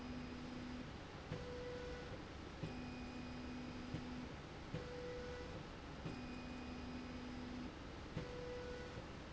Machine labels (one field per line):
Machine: slide rail